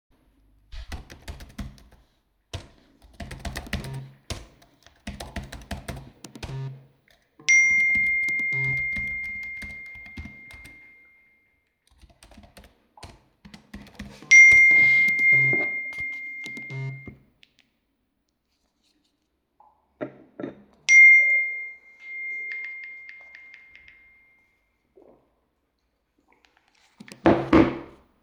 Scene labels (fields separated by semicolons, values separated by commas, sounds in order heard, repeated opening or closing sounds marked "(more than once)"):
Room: office; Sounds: keyboard typing, phone ringing